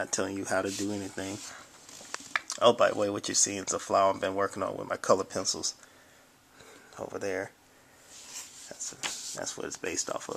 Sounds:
speech

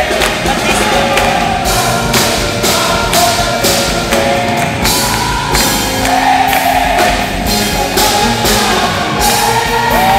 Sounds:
music, whoop, speech

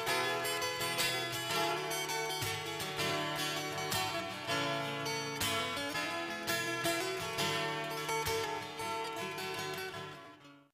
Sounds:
music

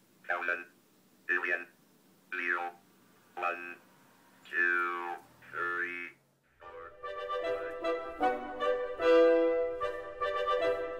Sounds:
speech, music, speech synthesizer

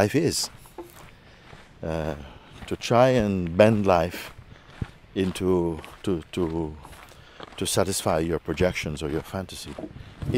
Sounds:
speech, walk

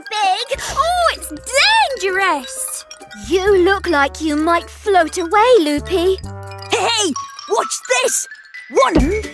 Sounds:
speech, music

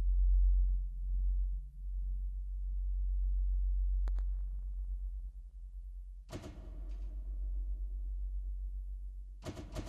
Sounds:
sound effect

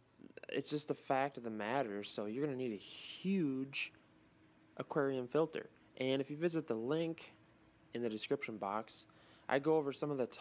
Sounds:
speech

